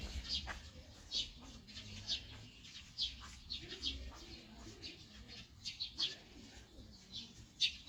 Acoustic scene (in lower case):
park